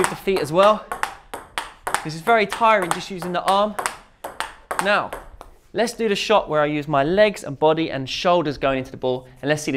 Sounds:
playing table tennis

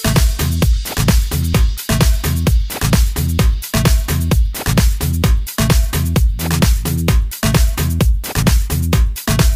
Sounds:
Music

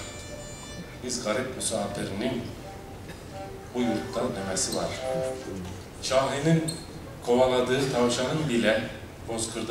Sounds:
Speech, Music

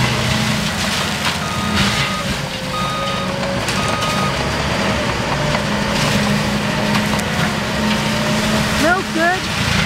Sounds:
Speech

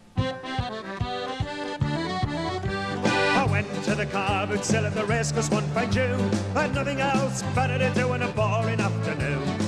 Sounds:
Music

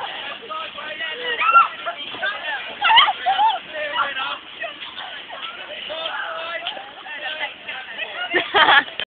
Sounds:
Speech

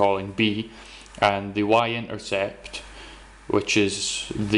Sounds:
Speech

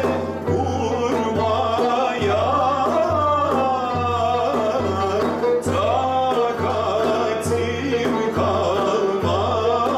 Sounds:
Traditional music, Classical music, Music

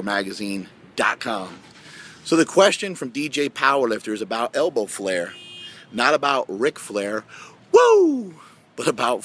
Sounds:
Speech

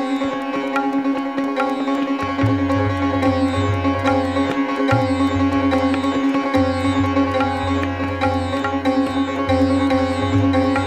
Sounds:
playing sitar

